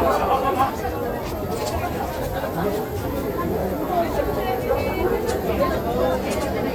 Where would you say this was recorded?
in a crowded indoor space